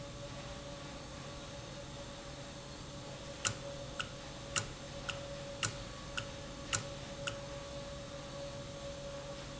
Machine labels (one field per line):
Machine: valve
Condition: normal